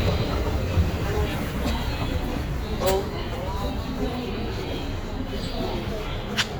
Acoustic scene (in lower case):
subway station